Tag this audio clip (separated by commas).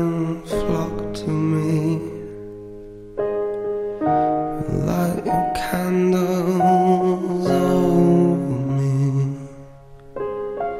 Music